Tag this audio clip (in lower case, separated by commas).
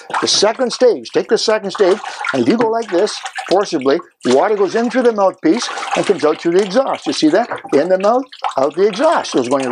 speech